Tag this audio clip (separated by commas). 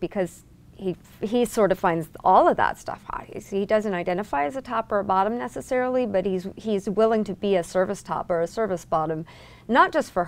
Speech